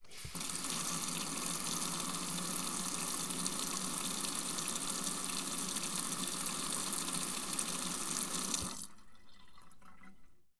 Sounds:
Sink (filling or washing), Domestic sounds, Water tap, Liquid

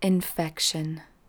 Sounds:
Female speech, Speech, Human voice

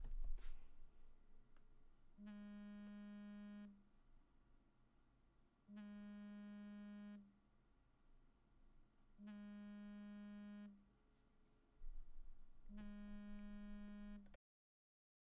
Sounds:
Telephone, Alarm

